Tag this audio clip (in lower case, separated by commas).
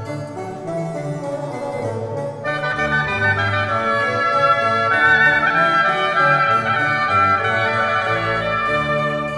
keyboard (musical), piano